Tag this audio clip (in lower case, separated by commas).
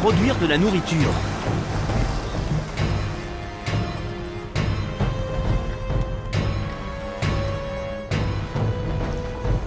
speech, music